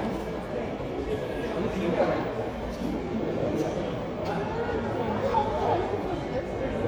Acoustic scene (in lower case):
crowded indoor space